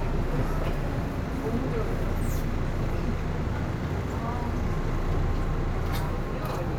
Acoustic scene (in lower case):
subway train